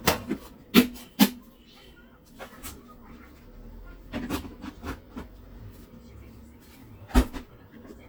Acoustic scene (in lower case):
kitchen